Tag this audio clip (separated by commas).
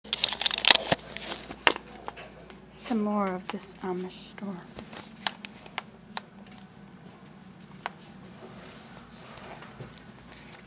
Speech